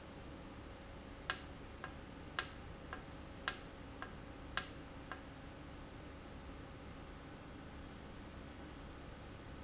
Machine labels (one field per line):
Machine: valve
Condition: normal